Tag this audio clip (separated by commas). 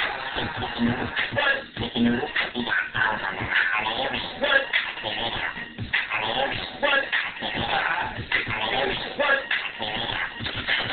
Music